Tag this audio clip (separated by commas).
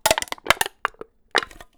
Crushing